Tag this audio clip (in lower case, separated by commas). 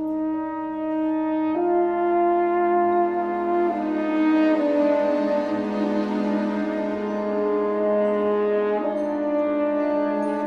playing french horn